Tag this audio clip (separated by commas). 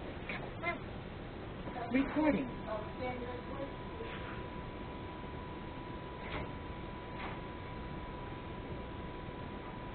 Speech